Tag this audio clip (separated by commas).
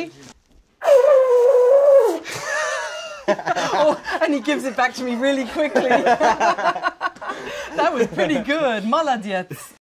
Speech, Music